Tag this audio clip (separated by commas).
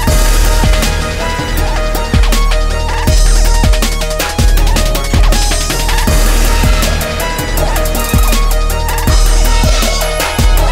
Music